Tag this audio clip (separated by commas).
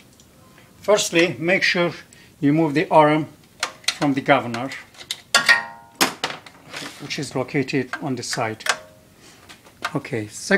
Speech